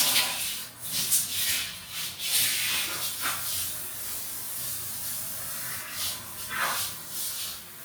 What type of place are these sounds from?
restroom